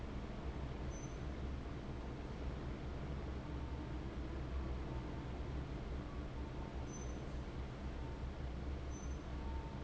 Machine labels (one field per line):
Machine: fan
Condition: abnormal